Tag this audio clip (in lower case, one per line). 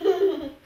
laughter
human voice